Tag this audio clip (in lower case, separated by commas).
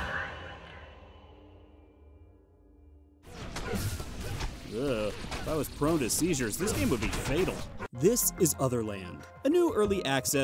music, speech